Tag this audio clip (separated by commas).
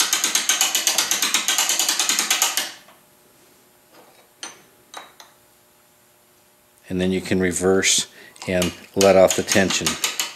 Speech